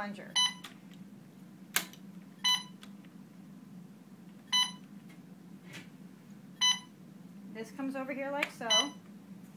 A beep then a woman speaking